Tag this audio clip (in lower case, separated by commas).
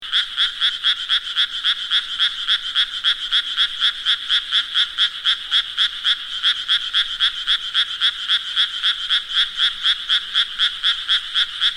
frog, animal, wild animals